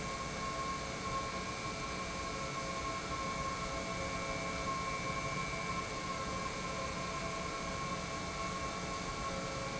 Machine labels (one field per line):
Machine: pump